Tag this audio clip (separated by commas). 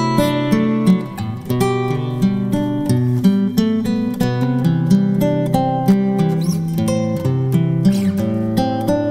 Music, Electric guitar, Plucked string instrument, Guitar, Strum, Musical instrument